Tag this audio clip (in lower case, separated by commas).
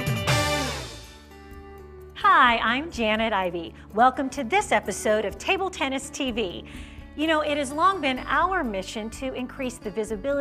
music, speech